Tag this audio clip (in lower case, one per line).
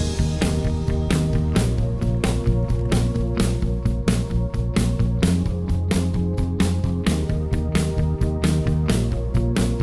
music